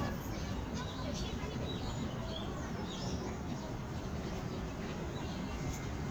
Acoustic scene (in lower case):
park